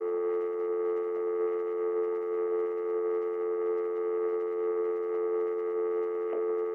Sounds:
telephone
alarm

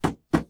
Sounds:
tap

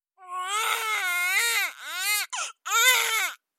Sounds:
human voice
crying

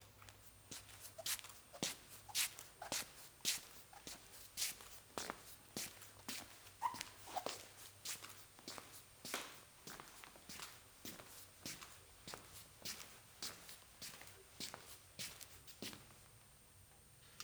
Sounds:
footsteps

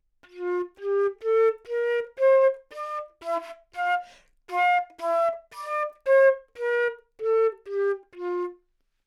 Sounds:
musical instrument
music
wind instrument

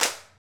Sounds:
hands
clapping

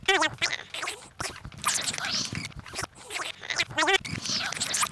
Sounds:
speech
human voice
conversation

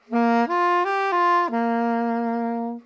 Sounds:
musical instrument
music
woodwind instrument

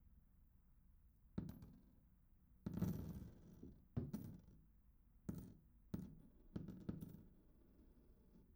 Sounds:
coin (dropping)
domestic sounds

